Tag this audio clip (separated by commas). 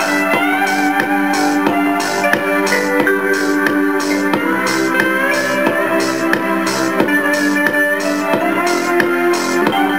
Guitar, Strum, Musical instrument, Bass guitar, Music, Plucked string instrument